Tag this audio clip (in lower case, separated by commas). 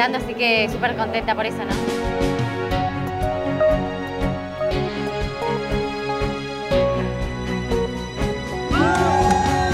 music, speech, outside, urban or man-made